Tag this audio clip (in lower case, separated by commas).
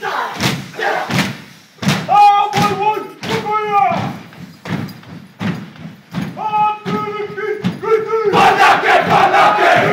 speech